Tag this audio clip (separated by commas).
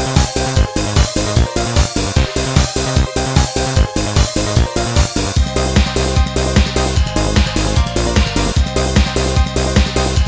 Techno, Electronic music, Music